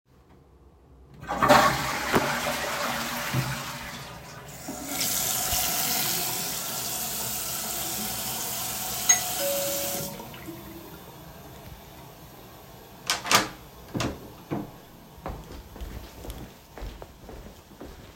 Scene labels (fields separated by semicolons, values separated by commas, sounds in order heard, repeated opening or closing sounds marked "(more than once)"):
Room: bathroom; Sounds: toilet flushing, running water, bell ringing, door, footsteps